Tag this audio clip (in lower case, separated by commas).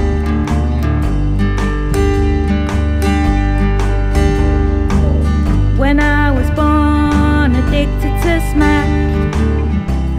music, rhythm and blues